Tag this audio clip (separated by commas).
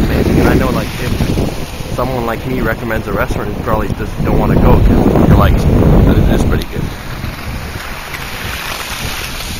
Speech, outside, urban or man-made